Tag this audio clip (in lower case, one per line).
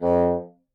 musical instrument
music
woodwind instrument